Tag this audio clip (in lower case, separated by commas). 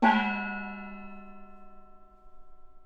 percussion, music, gong, musical instrument